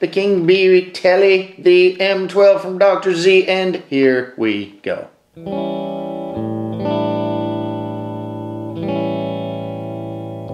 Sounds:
Music, Guitar, Speech

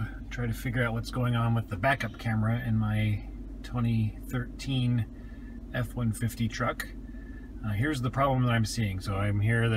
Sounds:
reversing beeps

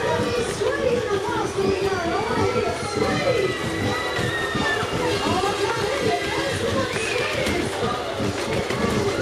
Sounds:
Speech

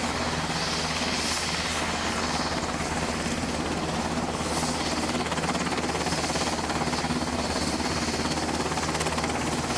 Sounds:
Vehicle, Helicopter, Aircraft

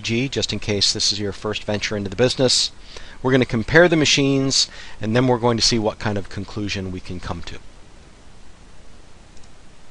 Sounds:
Speech

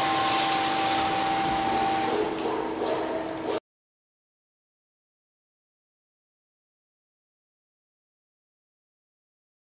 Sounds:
Tools

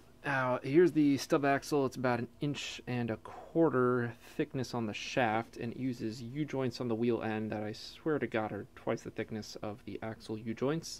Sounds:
Speech

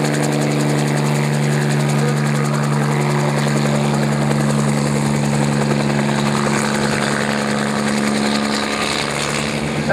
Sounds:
Speech

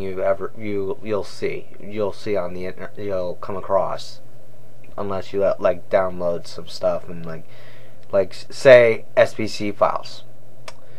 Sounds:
Speech

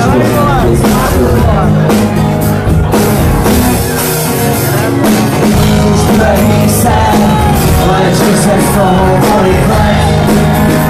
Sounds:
Speech, Music

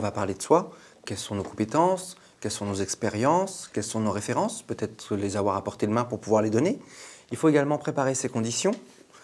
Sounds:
Speech

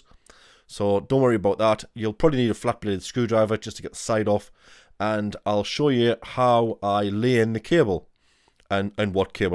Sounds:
Speech

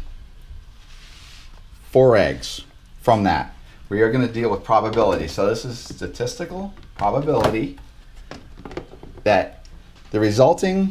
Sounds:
Speech

